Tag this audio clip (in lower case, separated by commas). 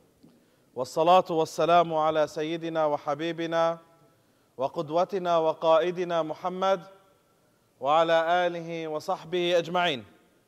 speech